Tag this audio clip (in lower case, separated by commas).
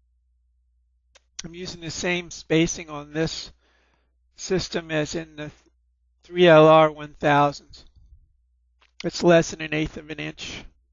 speech